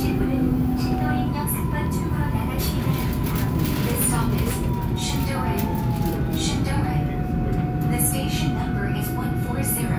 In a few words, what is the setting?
subway train